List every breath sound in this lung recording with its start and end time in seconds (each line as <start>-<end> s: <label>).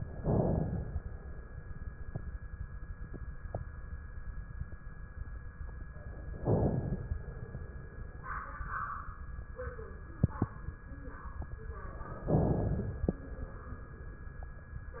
0.16-1.68 s: inhalation
6.37-7.89 s: inhalation
12.21-13.87 s: inhalation